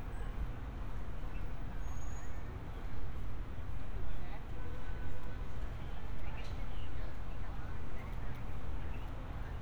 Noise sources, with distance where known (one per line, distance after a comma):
person or small group talking
unidentified human voice